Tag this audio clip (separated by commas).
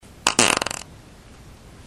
Fart